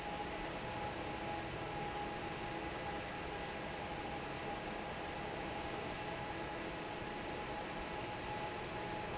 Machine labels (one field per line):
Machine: fan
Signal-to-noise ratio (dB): 0 dB